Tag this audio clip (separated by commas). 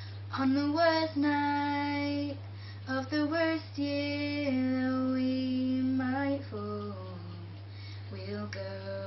Child singing